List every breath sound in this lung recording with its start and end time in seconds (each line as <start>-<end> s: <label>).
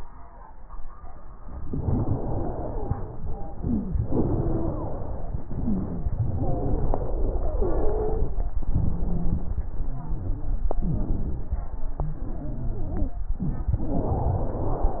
1.65-3.15 s: exhalation
1.65-3.15 s: wheeze
3.45-4.04 s: inhalation
4.07-5.46 s: exhalation
4.07-5.46 s: wheeze
5.45-6.04 s: inhalation
5.45-6.04 s: wheeze
5.49-6.03 s: wheeze
6.05-8.43 s: exhalation
8.66-9.52 s: inhalation
8.66-9.52 s: crackles
9.54-10.71 s: exhalation
9.79-10.71 s: wheeze
10.81-11.73 s: inhalation
10.81-11.73 s: crackles
11.87-13.24 s: exhalation
11.87-13.24 s: wheeze
13.38-13.88 s: inhalation
13.38-13.88 s: crackles
13.89-15.00 s: exhalation
13.89-15.00 s: wheeze